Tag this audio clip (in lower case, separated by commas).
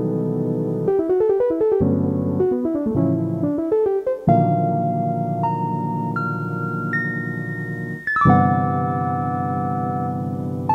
playing piano, piano, music